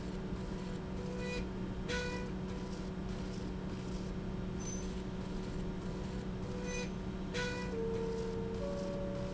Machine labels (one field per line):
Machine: slide rail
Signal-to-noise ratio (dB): -6 dB